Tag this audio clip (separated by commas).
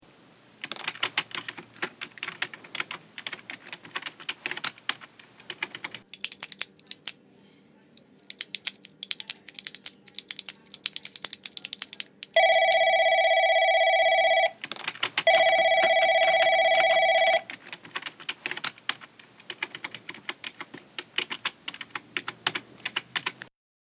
Telephone, Alarm, Typing, Domestic sounds